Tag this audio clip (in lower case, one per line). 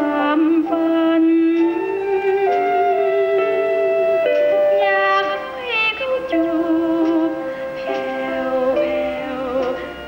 sad music
music